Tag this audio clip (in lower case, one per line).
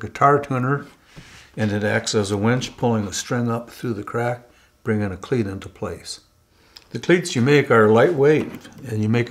speech